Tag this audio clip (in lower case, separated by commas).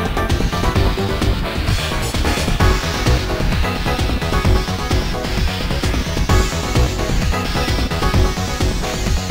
music